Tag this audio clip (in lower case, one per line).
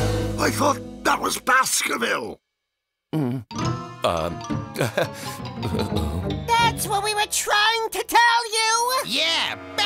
speech
music
inside a small room